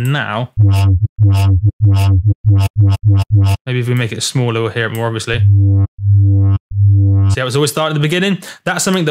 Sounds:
Synthesizer, Speech

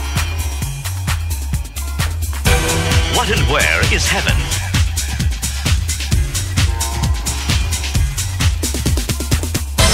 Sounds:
Music, Techno, Electronic music

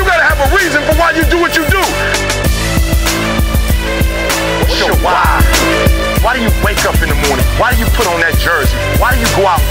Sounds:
Music

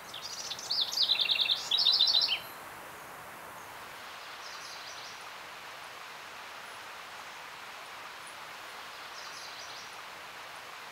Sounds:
wood thrush calling

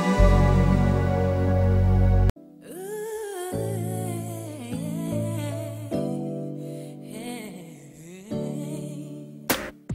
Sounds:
Independent music, Music, Soundtrack music

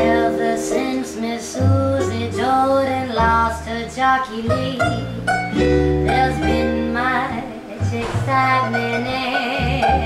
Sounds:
Music

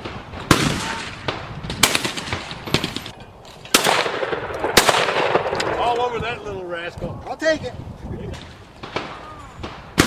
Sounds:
Speech

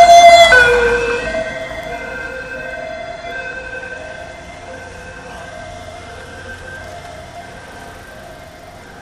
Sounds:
Speech

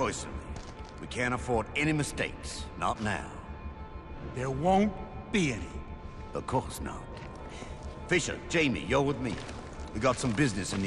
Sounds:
Speech

